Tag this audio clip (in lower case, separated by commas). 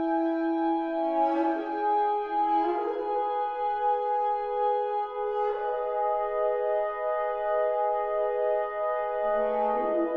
playing french horn, brass instrument, french horn